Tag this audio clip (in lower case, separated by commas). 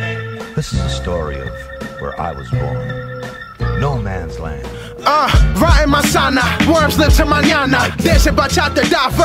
hip hop music, music, speech